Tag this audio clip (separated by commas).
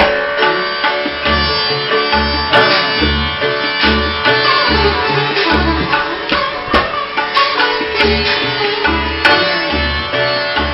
Musical instrument, Tabla, Music, Classical music, Plucked string instrument, Sitar